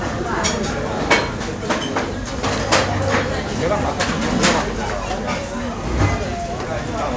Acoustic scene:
restaurant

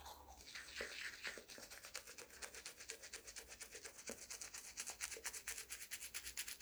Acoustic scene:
restroom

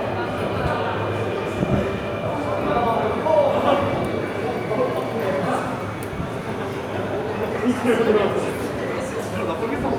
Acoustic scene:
subway station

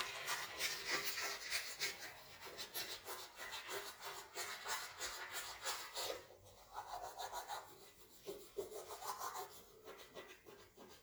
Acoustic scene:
restroom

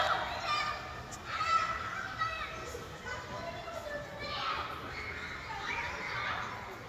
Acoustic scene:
park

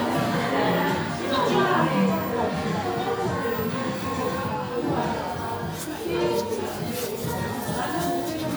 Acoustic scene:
crowded indoor space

